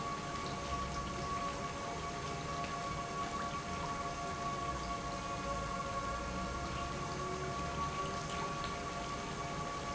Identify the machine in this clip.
pump